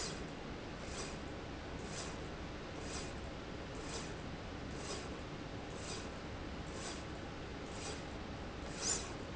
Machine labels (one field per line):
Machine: slide rail